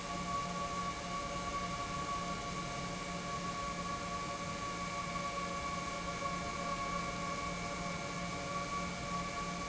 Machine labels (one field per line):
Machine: pump